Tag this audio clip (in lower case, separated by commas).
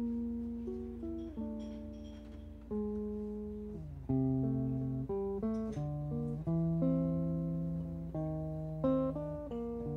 music